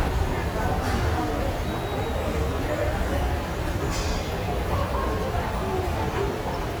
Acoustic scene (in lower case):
subway station